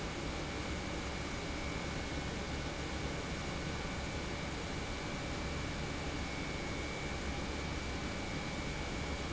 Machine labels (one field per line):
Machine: pump